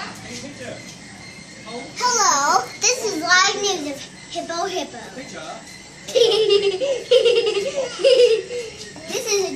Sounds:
Snicker, Giggle, kid speaking, Laughter

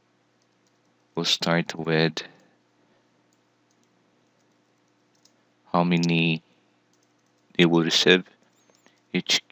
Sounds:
inside a small room, Speech

